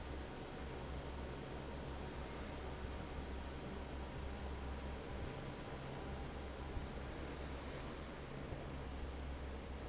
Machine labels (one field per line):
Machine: fan